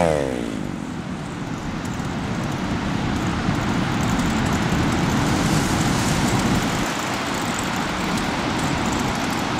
An engine revs and idles while waves crash on the shoreline